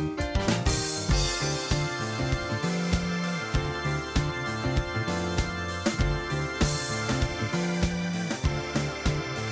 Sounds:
music

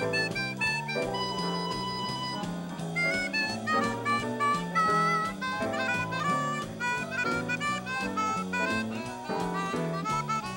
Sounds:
playing harmonica

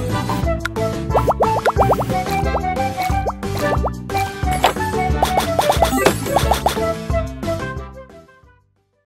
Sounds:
music

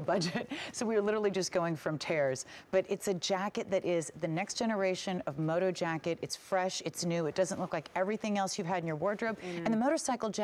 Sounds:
speech

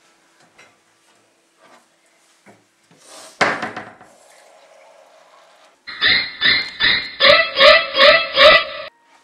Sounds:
speech
music
inside a small room

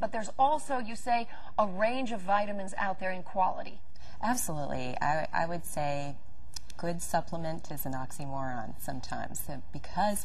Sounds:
conversation
speech

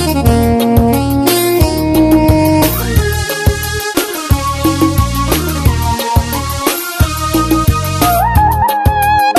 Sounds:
music

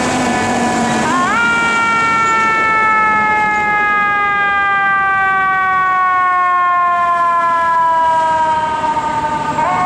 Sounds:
emergency vehicle
fire truck (siren)
siren

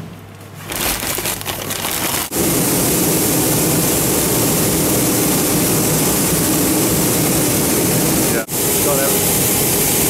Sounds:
speech

